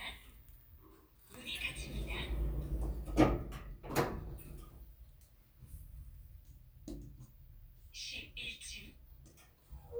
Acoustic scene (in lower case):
elevator